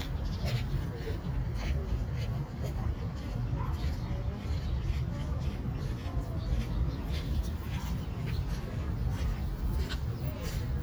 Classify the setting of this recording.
park